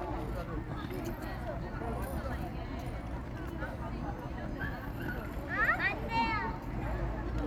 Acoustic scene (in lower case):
park